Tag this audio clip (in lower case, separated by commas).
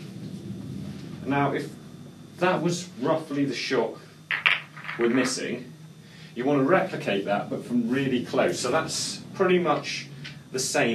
striking pool